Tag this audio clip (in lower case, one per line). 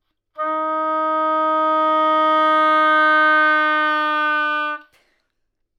music
woodwind instrument
musical instrument